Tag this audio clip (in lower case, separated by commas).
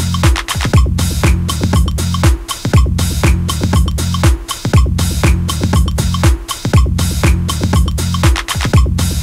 electronica, electronic music, music